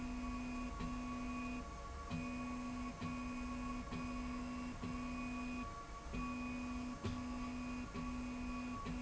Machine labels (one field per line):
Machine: slide rail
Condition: normal